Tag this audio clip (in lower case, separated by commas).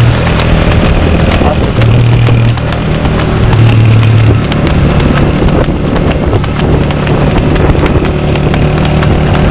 horse clip-clop, horse, clip-clop, animal, speech